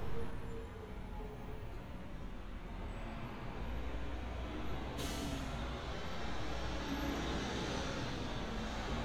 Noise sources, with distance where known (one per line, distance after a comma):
large-sounding engine, near